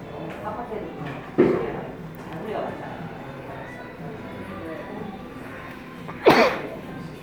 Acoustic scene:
cafe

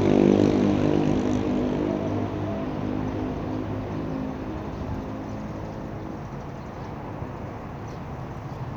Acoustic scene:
street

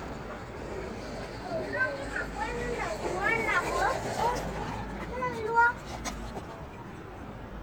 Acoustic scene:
residential area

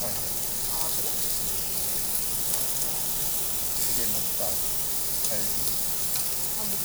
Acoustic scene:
restaurant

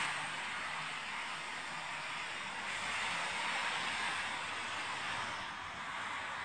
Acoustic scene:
street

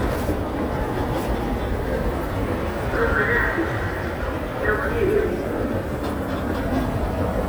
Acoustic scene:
subway station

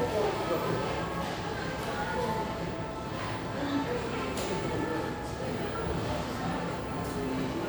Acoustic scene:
cafe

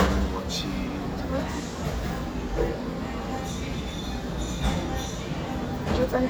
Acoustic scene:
cafe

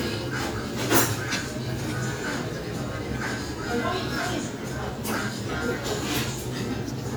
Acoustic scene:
restaurant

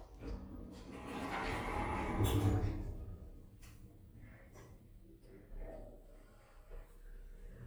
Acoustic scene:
elevator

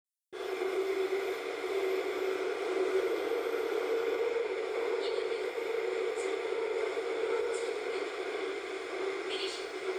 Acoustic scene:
subway train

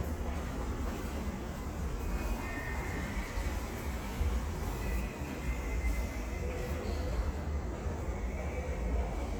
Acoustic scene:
subway station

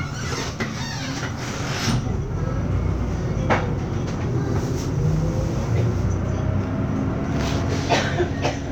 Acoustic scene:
bus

